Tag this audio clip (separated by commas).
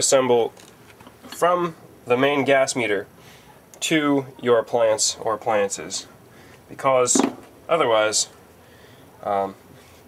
Tools, Speech